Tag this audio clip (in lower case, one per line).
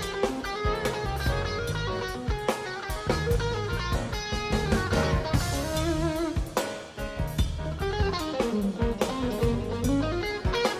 musical instrument
music
electric guitar
plucked string instrument